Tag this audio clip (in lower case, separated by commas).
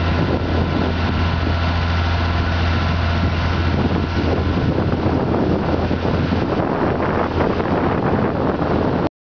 vehicle